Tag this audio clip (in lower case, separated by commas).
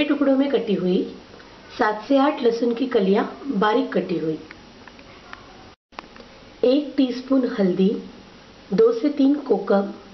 speech